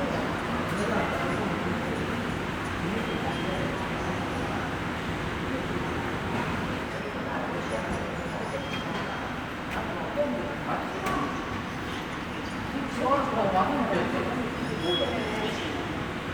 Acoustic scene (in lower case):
subway station